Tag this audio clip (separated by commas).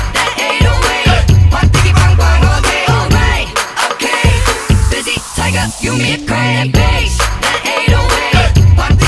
Music